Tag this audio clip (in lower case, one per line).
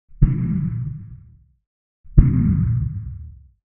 explosion